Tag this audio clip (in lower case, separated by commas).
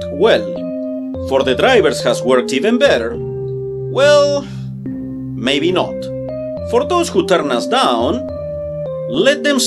music, speech